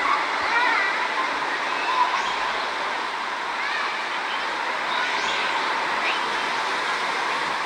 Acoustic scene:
park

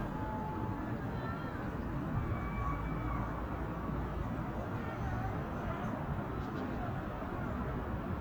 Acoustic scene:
residential area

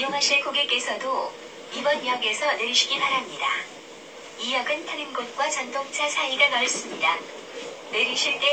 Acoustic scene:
subway train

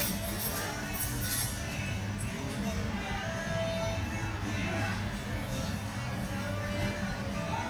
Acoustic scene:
restaurant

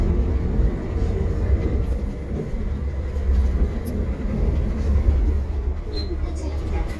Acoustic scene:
bus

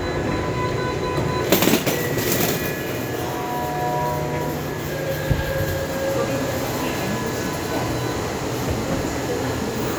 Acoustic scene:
subway station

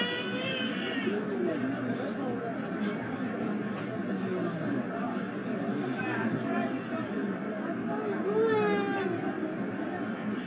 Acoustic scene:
residential area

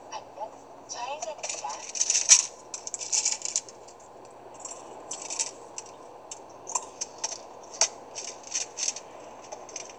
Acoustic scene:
car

